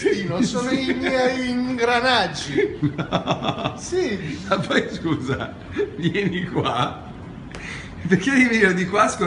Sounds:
speech

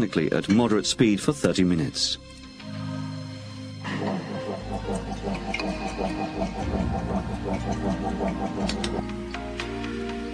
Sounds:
music, speech, inside a small room

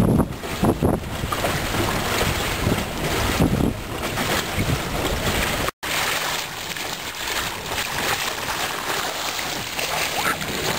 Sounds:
wind noise (microphone), ocean, water vehicle, sailboat, wind

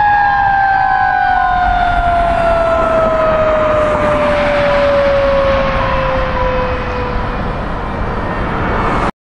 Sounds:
emergency vehicle, vehicle, fire truck (siren)

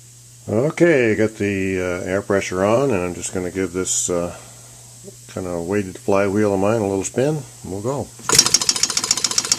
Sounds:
speech, engine

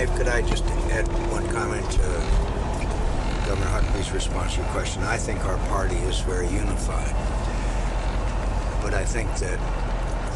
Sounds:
vehicle, speech

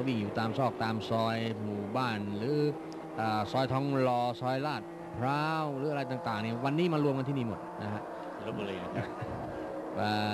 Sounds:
car passing by, speech

